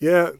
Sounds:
Human voice

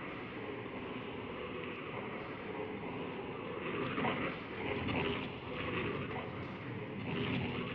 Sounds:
Singing, Human voice

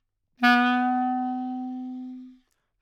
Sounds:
Music, Wind instrument, Musical instrument

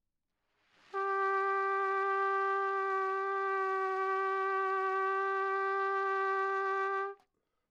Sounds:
Musical instrument, Brass instrument, Music, Trumpet

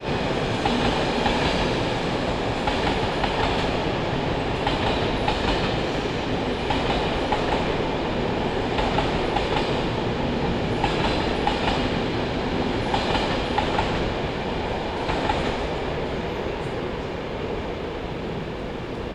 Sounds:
Rail transport, Vehicle, Train

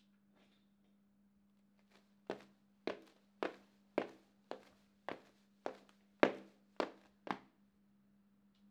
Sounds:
footsteps

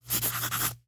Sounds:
Writing, home sounds

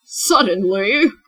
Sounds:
woman speaking, Speech, Human voice

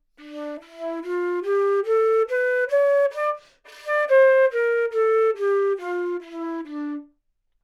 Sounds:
Musical instrument, Music, woodwind instrument

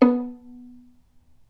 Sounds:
Musical instrument, Music, Bowed string instrument

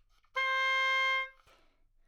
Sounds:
woodwind instrument, Music, Musical instrument

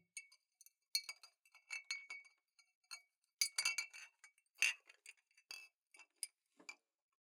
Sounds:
Glass, Chink

